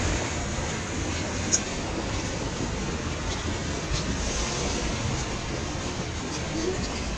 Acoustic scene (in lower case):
street